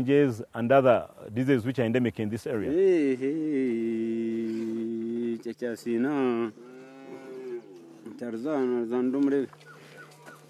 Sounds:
speech

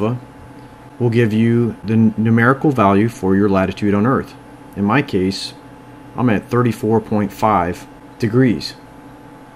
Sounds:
speech

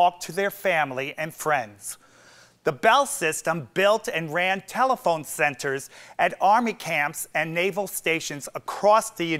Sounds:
speech

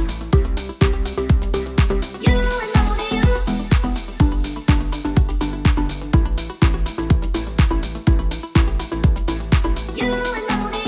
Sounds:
house music
music
dance music
rhythm and blues

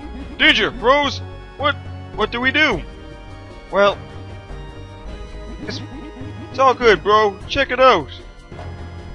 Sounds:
speech

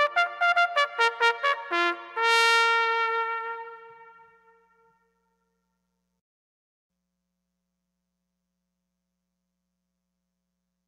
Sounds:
playing bugle

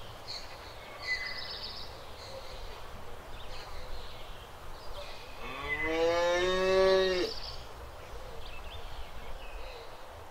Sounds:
cow lowing

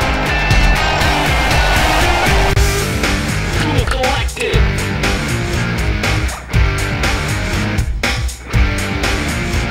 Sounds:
music

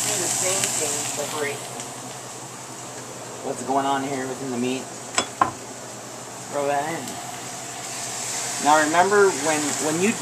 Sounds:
speech

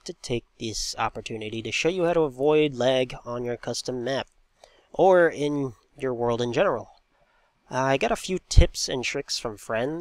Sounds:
speech

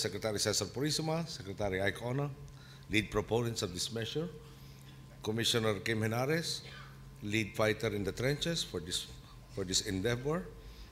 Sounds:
male speech
narration
speech

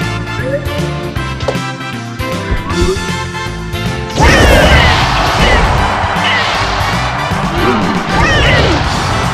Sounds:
music

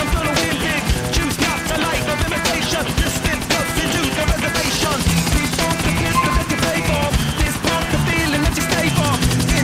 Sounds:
vehicle
music
helicopter

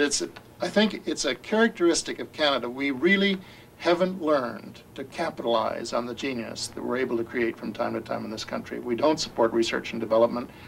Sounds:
speech

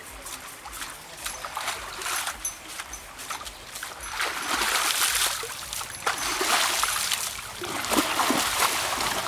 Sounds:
trickle

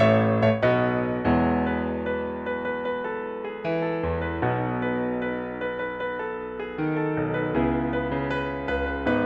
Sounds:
music

